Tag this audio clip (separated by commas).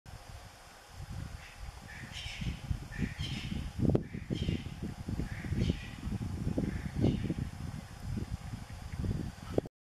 Bird